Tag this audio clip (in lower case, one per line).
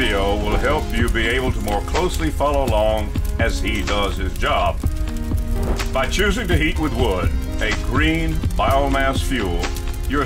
music
speech